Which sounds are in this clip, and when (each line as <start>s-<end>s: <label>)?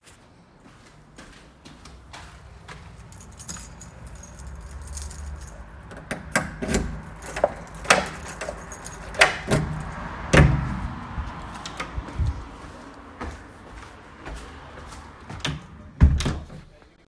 1.0s-3.7s: footsteps
3.2s-10.1s: keys
9.1s-11.3s: door
13.0s-15.7s: footsteps
15.4s-16.7s: door